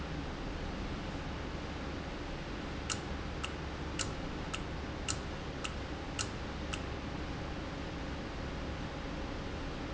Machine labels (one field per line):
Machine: valve